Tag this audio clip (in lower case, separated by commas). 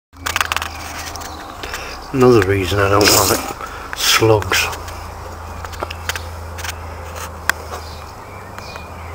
speech